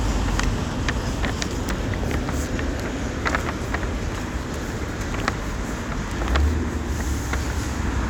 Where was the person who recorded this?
on a street